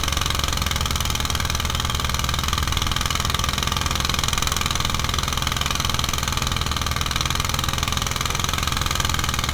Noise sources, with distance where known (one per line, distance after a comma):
jackhammer, near